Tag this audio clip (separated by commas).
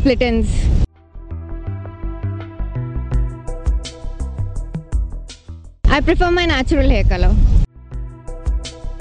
Speech, Music